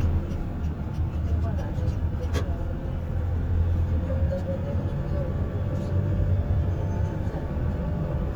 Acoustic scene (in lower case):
car